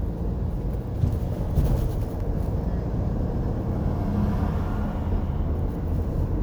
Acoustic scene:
car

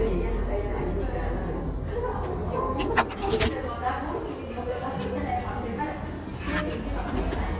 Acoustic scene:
cafe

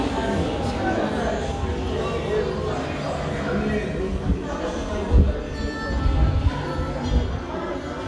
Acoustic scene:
crowded indoor space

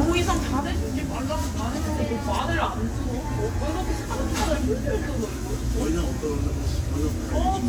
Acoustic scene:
crowded indoor space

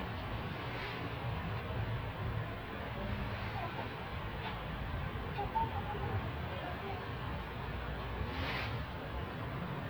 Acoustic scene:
residential area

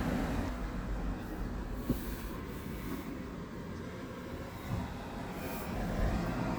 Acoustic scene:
street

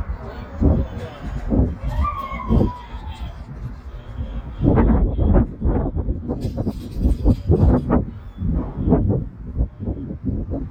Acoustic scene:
residential area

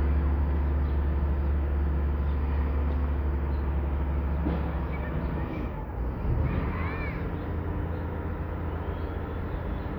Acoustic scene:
residential area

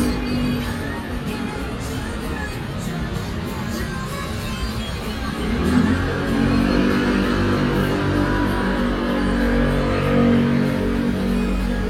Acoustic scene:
street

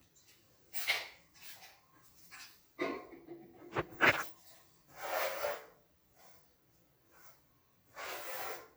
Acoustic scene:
restroom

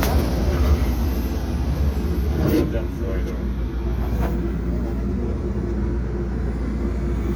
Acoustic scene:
subway train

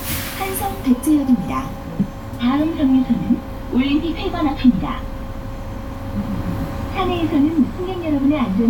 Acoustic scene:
bus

